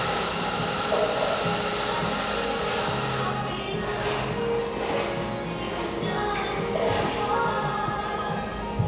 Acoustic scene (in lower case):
cafe